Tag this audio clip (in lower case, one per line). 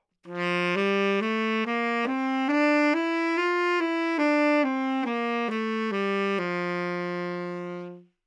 musical instrument
woodwind instrument
music